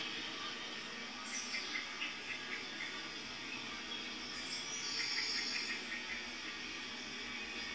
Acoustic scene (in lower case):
park